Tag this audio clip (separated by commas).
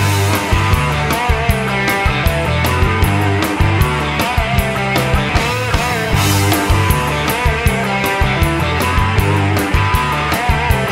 Rock and roll, Music